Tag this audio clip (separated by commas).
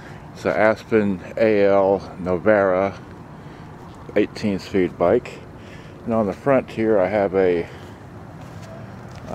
Speech